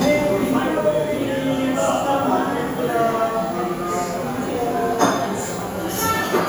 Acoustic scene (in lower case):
cafe